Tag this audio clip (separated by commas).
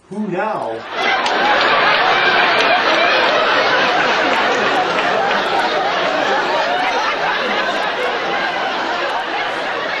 Speech